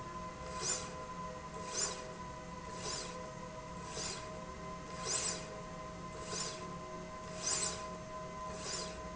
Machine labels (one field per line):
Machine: slide rail